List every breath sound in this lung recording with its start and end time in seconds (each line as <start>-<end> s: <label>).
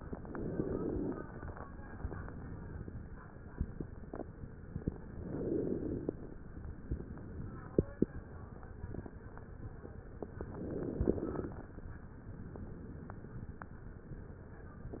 0.00-1.22 s: inhalation
1.29-2.81 s: exhalation
4.87-6.39 s: inhalation
6.86-8.38 s: exhalation
10.18-11.70 s: inhalation